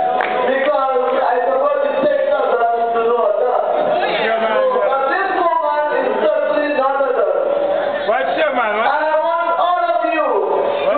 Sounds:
Female speech, Speech, Narration

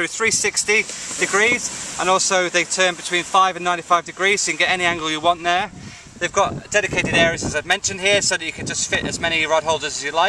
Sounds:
Speech

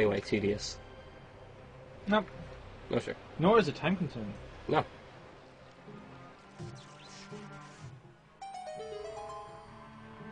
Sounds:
Speech, Music

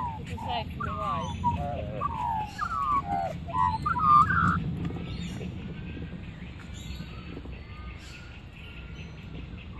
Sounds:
magpie calling

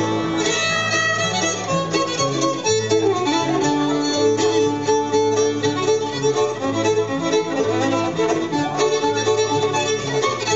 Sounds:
Music, fiddle, Musical instrument

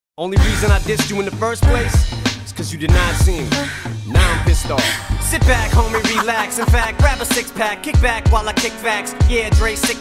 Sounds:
Rapping

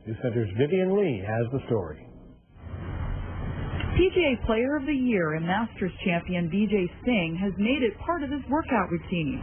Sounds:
woman speaking, Male speech, Speech

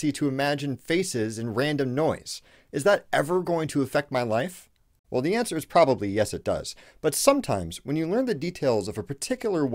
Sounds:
Speech

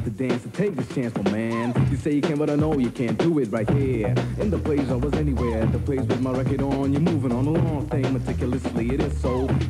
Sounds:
Music

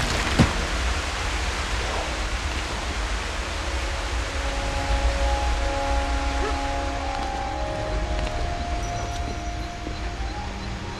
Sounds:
Music

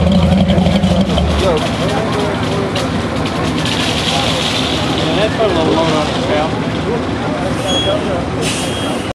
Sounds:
Truck, Vehicle, Speech

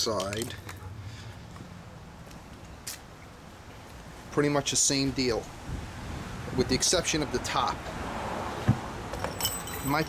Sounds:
Speech

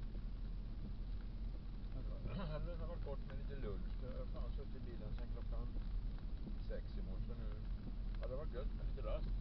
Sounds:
Vehicle, Speech

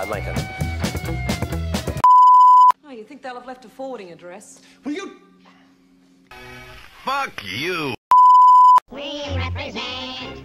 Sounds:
Speech, Music

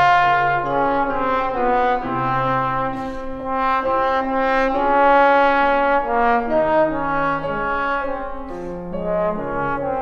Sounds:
French horn, Brass instrument

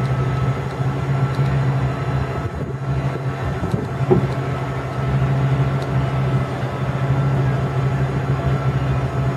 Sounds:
Truck, Vehicle

